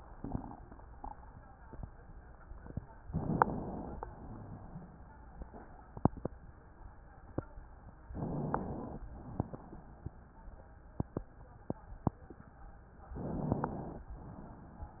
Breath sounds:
3.03-4.08 s: inhalation
8.09-9.02 s: inhalation
9.02-9.80 s: exhalation
13.07-14.05 s: inhalation
14.05-14.92 s: exhalation

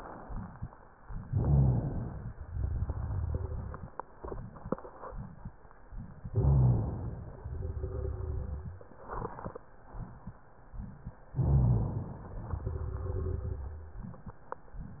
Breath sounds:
1.26-2.35 s: inhalation
1.26-2.35 s: rhonchi
2.48-5.52 s: exhalation
6.31-7.42 s: inhalation
6.31-7.42 s: rhonchi
7.43-8.76 s: exhalation
11.35-12.46 s: inhalation
11.35-12.46 s: rhonchi
12.46-13.78 s: exhalation

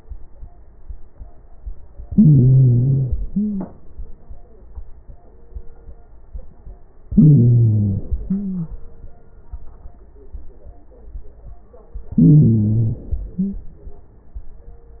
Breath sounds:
2.12-3.00 s: inhalation
2.12-3.00 s: stridor
3.05-3.80 s: exhalation
3.24-3.72 s: wheeze
7.10-8.06 s: inhalation
7.10-8.06 s: stridor
8.08-8.90 s: exhalation
8.25-8.79 s: wheeze
12.15-13.09 s: inhalation
12.15-13.09 s: stridor
13.21-13.75 s: exhalation
13.21-13.75 s: wheeze

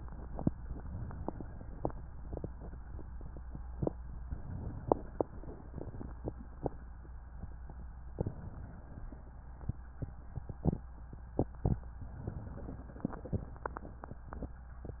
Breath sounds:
0.45-1.63 s: inhalation
4.11-5.29 s: inhalation
8.05-9.23 s: inhalation
11.97-13.15 s: inhalation

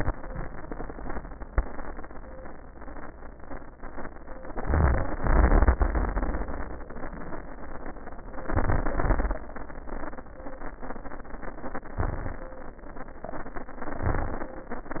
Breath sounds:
4.57-5.14 s: inhalation
5.21-6.81 s: exhalation
8.53-8.89 s: inhalation
9.01-9.38 s: exhalation
12.04-12.41 s: inhalation
14.10-14.47 s: inhalation

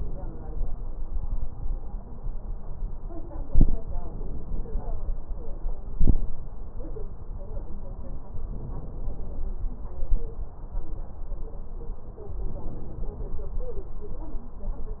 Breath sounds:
0.00-0.99 s: inhalation
8.44-9.52 s: inhalation
12.46-13.41 s: inhalation

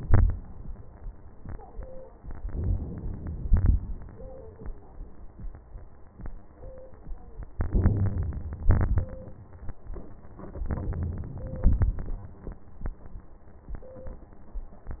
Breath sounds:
0.00-0.39 s: exhalation
2.19-3.40 s: inhalation
3.48-3.87 s: exhalation
7.56-8.67 s: inhalation
8.67-9.16 s: exhalation
10.62-11.62 s: inhalation
11.63-12.31 s: exhalation

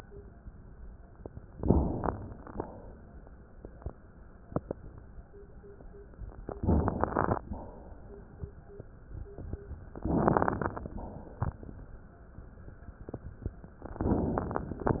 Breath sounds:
1.50-2.51 s: inhalation
1.50-2.51 s: crackles
2.51-3.15 s: exhalation
6.60-7.42 s: inhalation
6.60-7.42 s: crackles
7.48-8.06 s: exhalation
10.10-10.91 s: inhalation
10.10-10.91 s: crackles
10.99-11.74 s: exhalation
14.02-14.97 s: inhalation
14.02-14.97 s: crackles

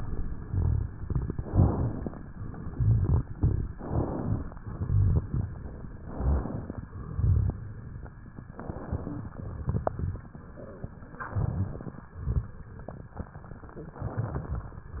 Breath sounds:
0.00-0.89 s: exhalation
0.00-0.89 s: crackles
1.41-2.22 s: inhalation
1.41-2.22 s: crackles
2.75-3.65 s: exhalation
2.75-3.65 s: crackles
3.74-4.55 s: inhalation
3.74-4.55 s: crackles
4.67-5.56 s: exhalation
4.67-5.56 s: crackles
6.01-6.83 s: inhalation
6.01-6.83 s: crackles
6.89-7.78 s: exhalation
6.89-7.78 s: crackles
8.54-9.36 s: inhalation
8.54-9.36 s: crackles
9.45-10.34 s: exhalation
9.45-10.34 s: crackles
11.25-12.07 s: inhalation
11.25-12.07 s: crackles
12.16-12.58 s: crackles
12.16-13.05 s: exhalation
14.00-14.82 s: inhalation
14.00-14.82 s: crackles

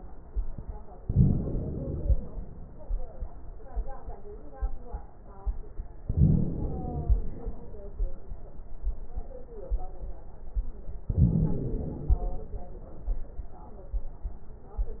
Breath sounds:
1.04-2.14 s: inhalation
6.06-7.16 s: inhalation
11.13-12.23 s: inhalation

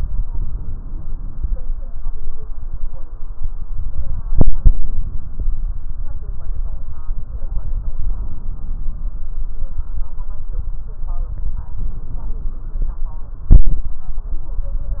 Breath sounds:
11.74-13.06 s: inhalation

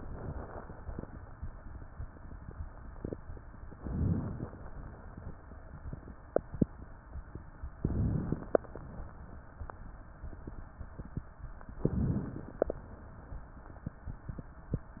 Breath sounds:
3.72-4.64 s: inhalation
7.76-8.68 s: inhalation
11.80-12.73 s: inhalation

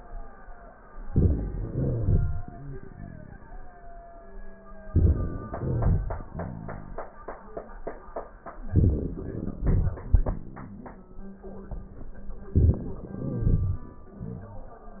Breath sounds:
0.99-1.58 s: crackles
1.03-1.61 s: inhalation
1.59-3.36 s: crackles
1.61-3.77 s: exhalation
4.92-5.52 s: inhalation
4.92-5.52 s: crackles
5.53-6.92 s: crackles
5.53-7.43 s: exhalation
8.56-9.53 s: crackles
8.58-9.58 s: inhalation
9.55-10.59 s: exhalation
9.56-10.59 s: crackles
12.53-12.99 s: inhalation
12.53-12.99 s: crackles
13.01-13.94 s: exhalation
13.01-13.94 s: crackles

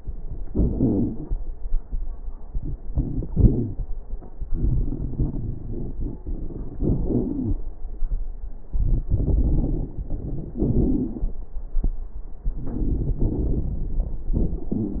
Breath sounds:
0.45-0.66 s: inhalation
0.45-0.66 s: crackles
0.71-1.23 s: exhalation
0.71-1.23 s: wheeze
2.50-3.27 s: inhalation
2.50-3.27 s: crackles
3.31-3.83 s: exhalation
3.31-3.83 s: wheeze
4.46-6.79 s: inhalation
4.48-6.76 s: crackles
6.78-7.58 s: exhalation
6.78-7.58 s: crackles
8.80-10.02 s: inhalation
8.80-10.02 s: crackles
10.58-11.40 s: exhalation
10.58-11.40 s: crackles
12.43-13.17 s: crackles
12.46-13.24 s: inhalation
13.22-14.23 s: exhalation
13.22-14.23 s: crackles
14.35-14.74 s: inhalation
14.35-14.74 s: crackles
14.74-15.00 s: exhalation

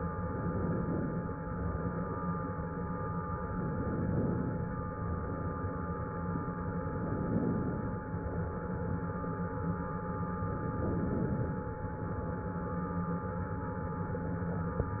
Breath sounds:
0.36-1.22 s: inhalation
3.57-4.57 s: inhalation
6.96-7.97 s: inhalation
10.62-11.63 s: inhalation

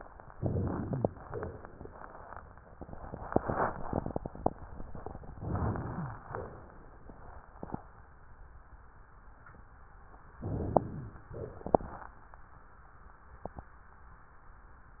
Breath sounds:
0.34-1.06 s: inhalation
0.38-1.08 s: rhonchi
1.27-1.99 s: exhalation
5.35-6.22 s: inhalation
5.39-6.21 s: rhonchi
6.26-7.14 s: exhalation
10.40-11.27 s: inhalation
10.42-11.23 s: rhonchi
11.33-12.14 s: exhalation

